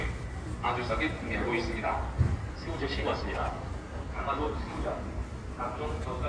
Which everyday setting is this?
residential area